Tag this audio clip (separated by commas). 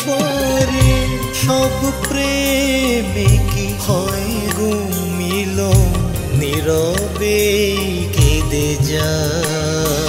people humming